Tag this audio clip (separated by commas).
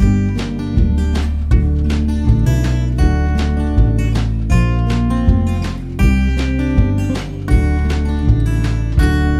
Speech, Music, Blues